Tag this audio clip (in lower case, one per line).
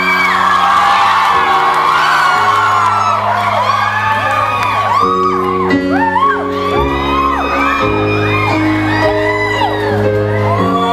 music